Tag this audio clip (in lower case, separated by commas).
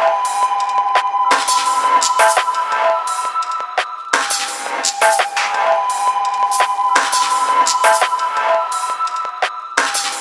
music